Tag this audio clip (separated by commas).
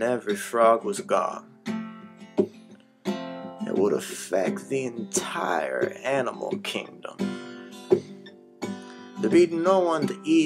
Music, Speech